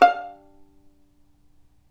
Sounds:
music
bowed string instrument
musical instrument

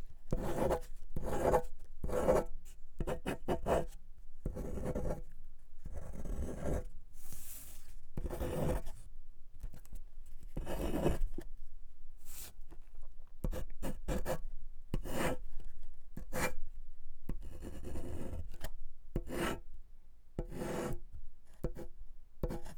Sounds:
domestic sounds
writing

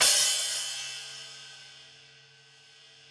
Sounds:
music
hi-hat
cymbal
percussion
musical instrument

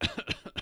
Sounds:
cough
respiratory sounds

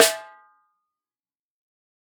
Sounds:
percussion
drum
musical instrument
snare drum
music

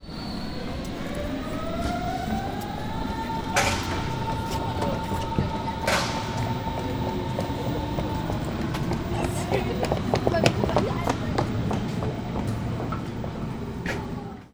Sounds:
vehicle
rail transport
run
train

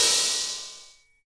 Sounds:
cymbal
music
musical instrument
percussion
crash cymbal

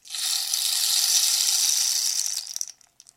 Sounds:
percussion
musical instrument
music
rattle (instrument)

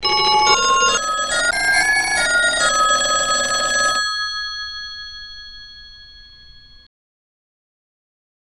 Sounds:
alarm
telephone

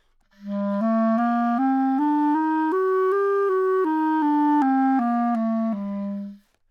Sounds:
music
wind instrument
musical instrument

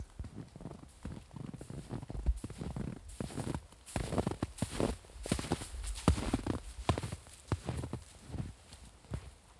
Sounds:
walk
squeak

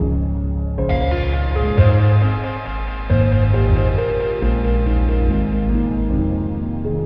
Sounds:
music
musical instrument
keyboard (musical)
piano

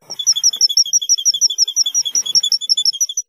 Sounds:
bird call
squeak
wild animals
tweet
bird
animal

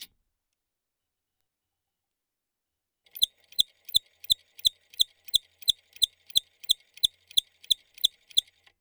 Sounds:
mechanisms

